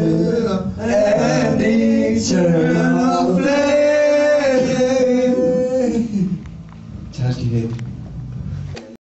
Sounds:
male singing, choir

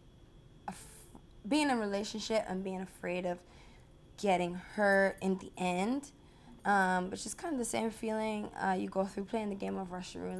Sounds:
woman speaking

